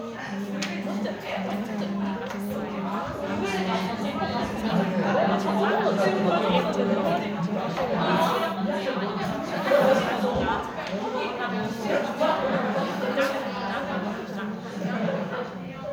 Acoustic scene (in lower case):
crowded indoor space